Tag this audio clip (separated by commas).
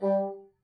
Music, woodwind instrument, Musical instrument